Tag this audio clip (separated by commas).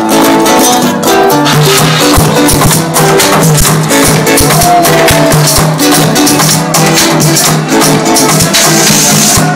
House music, Music, Electronic music